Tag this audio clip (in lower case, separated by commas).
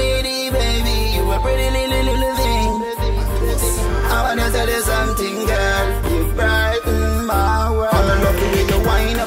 music, dance music